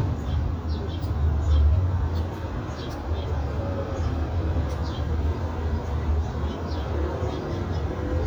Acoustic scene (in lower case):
residential area